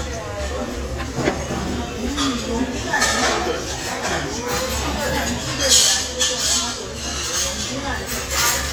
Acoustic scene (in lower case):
crowded indoor space